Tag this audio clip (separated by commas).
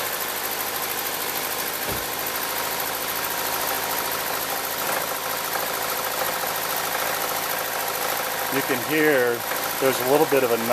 Idling, Engine, Speech, Engine knocking